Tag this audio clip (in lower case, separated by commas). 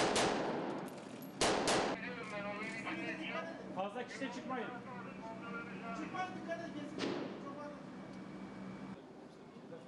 speech